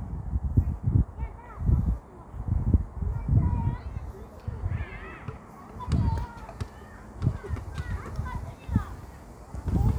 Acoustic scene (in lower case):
park